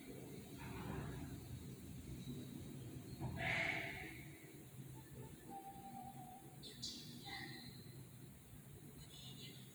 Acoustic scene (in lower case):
elevator